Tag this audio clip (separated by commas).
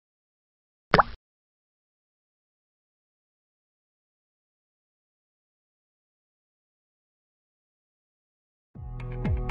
Music, Plop